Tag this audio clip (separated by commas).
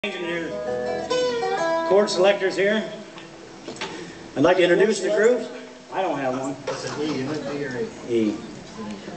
Banjo, Guitar, Bluegrass, Male speech, Speech, Country, Musical instrument, Music